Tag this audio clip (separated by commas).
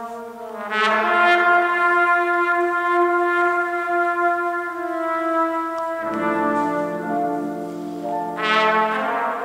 playing trumpet, Trumpet, Brass instrument